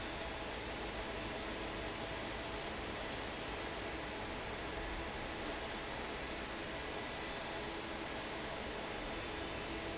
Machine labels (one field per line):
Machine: fan